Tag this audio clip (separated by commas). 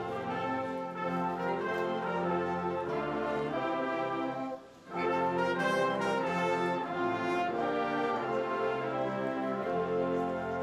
Music